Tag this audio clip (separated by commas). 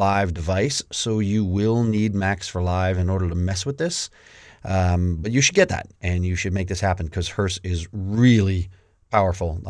Speech